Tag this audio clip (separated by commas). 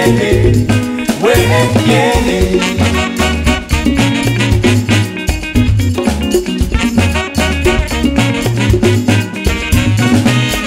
Music, Happy music